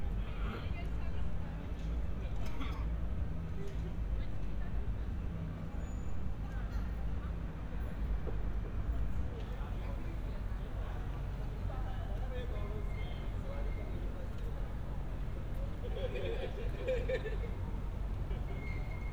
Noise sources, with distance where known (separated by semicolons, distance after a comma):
person or small group talking